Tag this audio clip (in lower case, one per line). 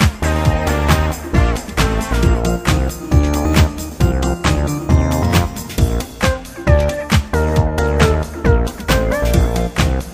music